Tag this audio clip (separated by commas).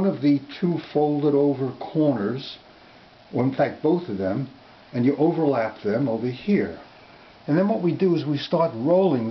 Speech